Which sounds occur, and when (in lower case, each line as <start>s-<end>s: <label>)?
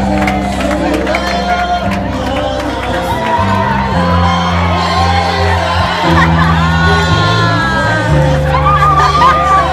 0.0s-2.9s: clapping
0.0s-9.7s: crowd
0.0s-9.7s: music
0.7s-1.8s: male singing
2.1s-3.3s: male singing
3.1s-5.5s: whoop
3.2s-3.4s: clapping
4.6s-6.4s: male singing
6.0s-8.0s: kid speaking
6.6s-8.4s: male singing
8.5s-9.7s: whoop
8.8s-9.5s: kid speaking
8.9s-9.7s: male singing